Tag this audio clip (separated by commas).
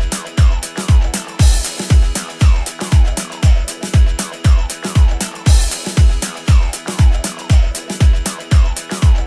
Music, Disco